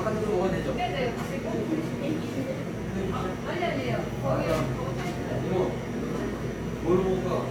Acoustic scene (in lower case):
cafe